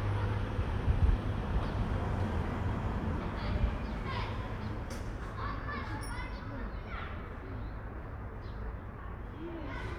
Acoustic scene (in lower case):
residential area